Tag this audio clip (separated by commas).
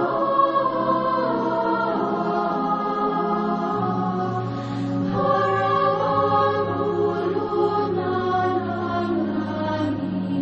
Music